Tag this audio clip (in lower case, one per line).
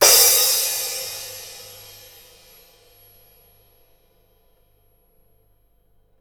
musical instrument
cymbal
crash cymbal
music
percussion